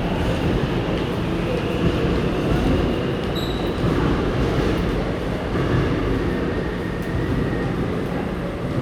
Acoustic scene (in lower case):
subway station